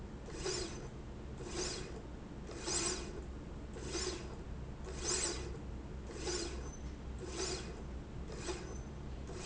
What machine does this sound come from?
slide rail